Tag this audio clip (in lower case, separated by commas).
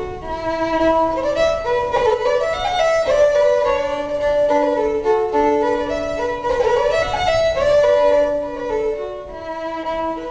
music, musical instrument, violin